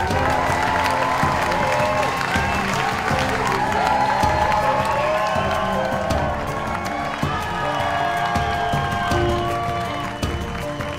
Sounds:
music

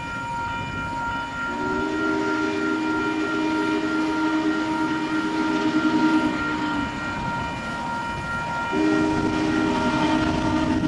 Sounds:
railroad car
train
train whistle
rail transport

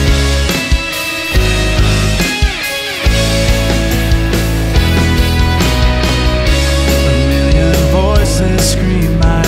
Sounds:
music
sad music

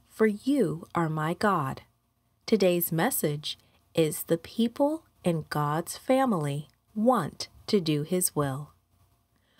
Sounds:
speech

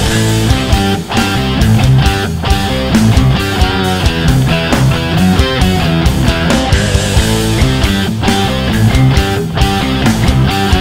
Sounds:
progressive rock
music
rock and roll

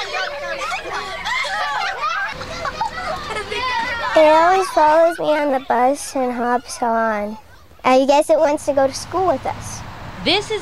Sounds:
speech

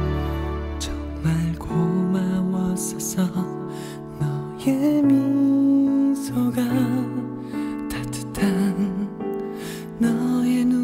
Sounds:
music

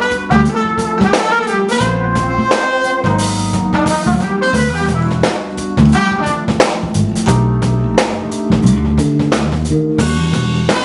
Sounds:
music

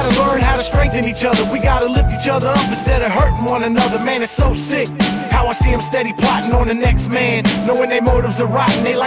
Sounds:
middle eastern music
music

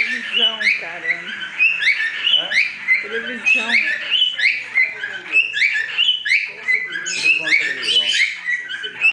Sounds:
speech

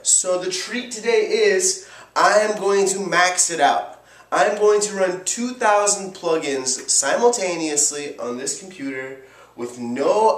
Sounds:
speech

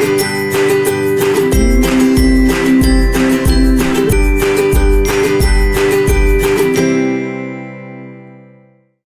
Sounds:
music

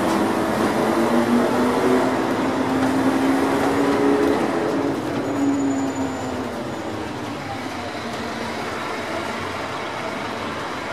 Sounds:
vehicle

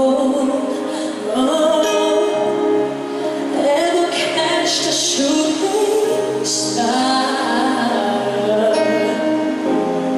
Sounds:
male singing
music

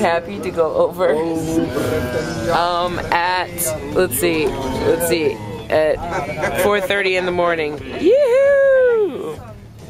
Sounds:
speech

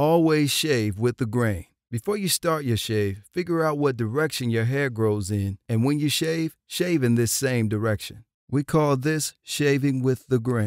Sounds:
speech

